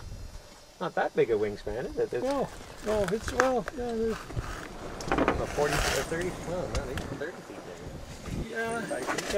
Two men speak together